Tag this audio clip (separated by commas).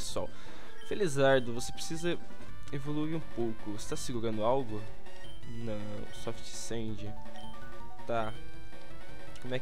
Music, Speech